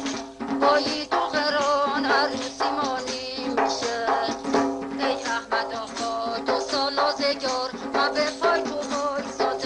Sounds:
Music, Traditional music

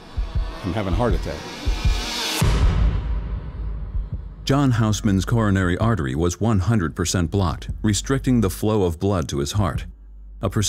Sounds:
Speech, Music

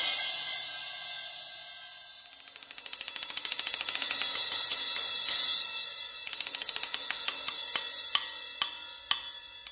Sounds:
Music

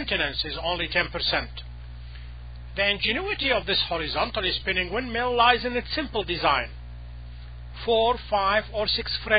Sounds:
Speech

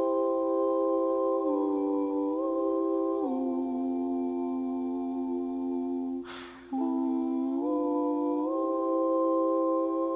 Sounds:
Music

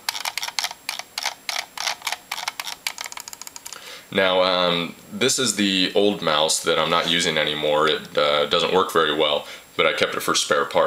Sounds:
Speech

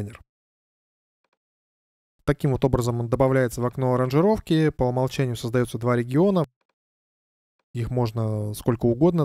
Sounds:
Speech

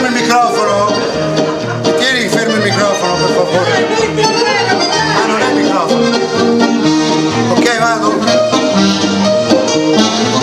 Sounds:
Music, Musical instrument, Saxophone, Speech

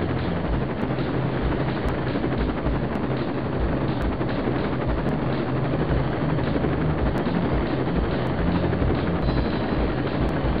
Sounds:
Vehicle, Music

